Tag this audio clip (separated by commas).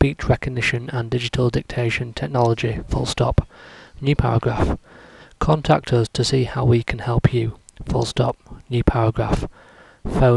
Speech, Speech synthesizer, man speaking, Narration